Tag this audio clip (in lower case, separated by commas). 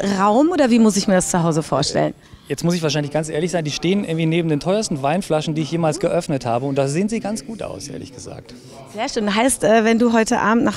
speech